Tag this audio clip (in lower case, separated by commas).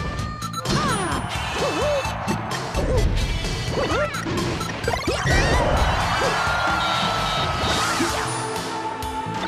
smash, music